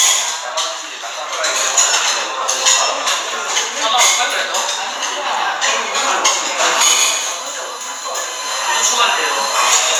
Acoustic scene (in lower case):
restaurant